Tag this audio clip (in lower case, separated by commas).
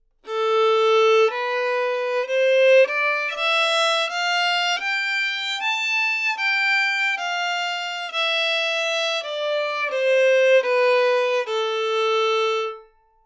bowed string instrument, musical instrument, music